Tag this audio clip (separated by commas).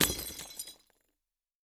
Glass, Shatter, Crushing